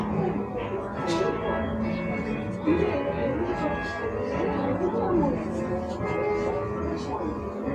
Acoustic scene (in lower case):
cafe